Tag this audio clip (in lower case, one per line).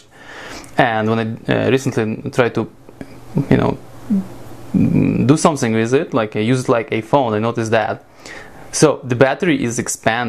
speech